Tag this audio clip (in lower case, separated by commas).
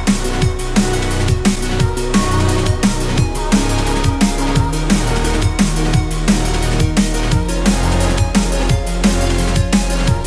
soul music, music, soundtrack music, blues